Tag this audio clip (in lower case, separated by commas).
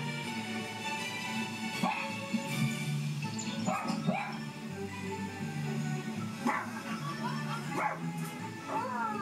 dog, domestic animals, animal, music, bow-wow